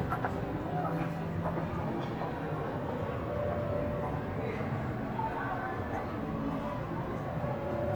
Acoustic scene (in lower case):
crowded indoor space